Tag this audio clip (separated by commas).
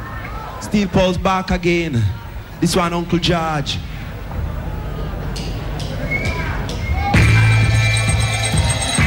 Speech, Music, Jazz